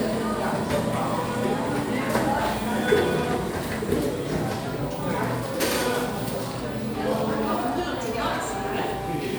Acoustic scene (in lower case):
cafe